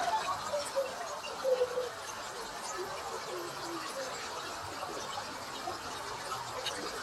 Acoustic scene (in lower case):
park